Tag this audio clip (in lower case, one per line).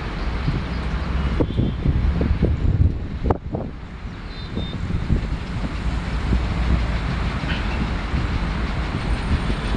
rail transport
vehicle
train wagon
train